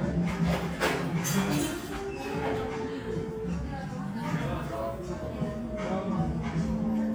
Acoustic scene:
cafe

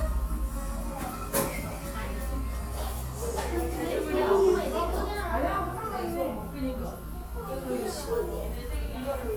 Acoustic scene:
cafe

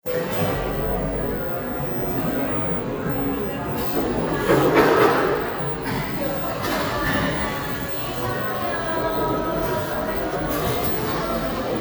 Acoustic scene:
cafe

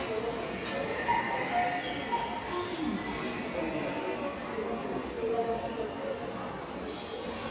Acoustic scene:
subway station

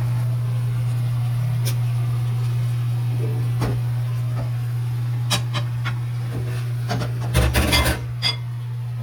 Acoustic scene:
kitchen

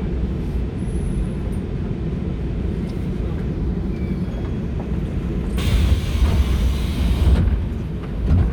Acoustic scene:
subway train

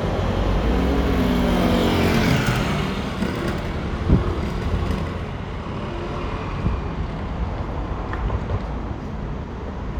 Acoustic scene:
residential area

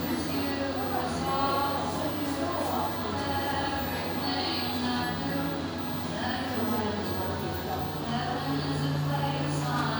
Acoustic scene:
cafe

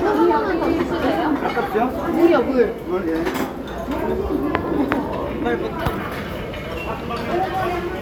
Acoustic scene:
crowded indoor space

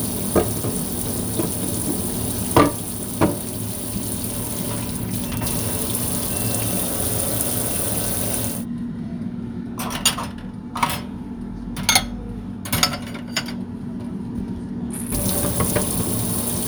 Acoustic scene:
kitchen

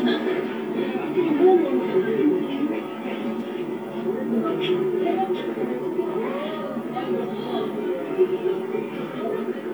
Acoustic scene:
park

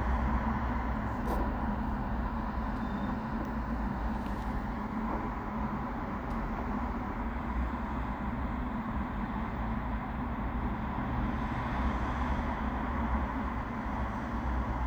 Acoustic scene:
residential area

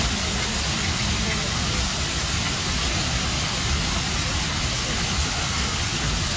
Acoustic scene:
park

